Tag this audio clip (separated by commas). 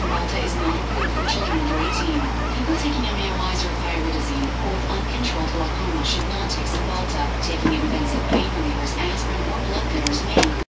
Speech, Oink